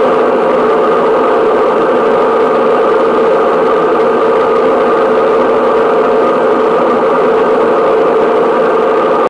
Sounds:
white noise, vibration

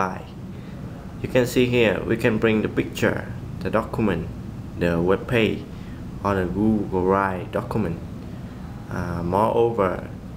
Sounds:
speech

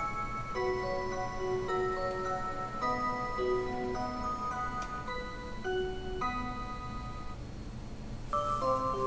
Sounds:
clock

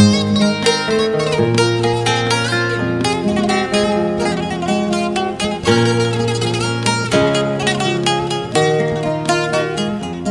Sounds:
music

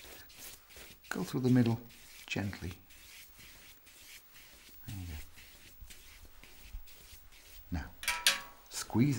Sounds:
speech, inside a small room

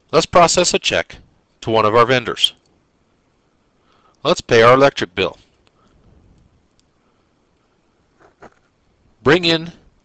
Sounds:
speech

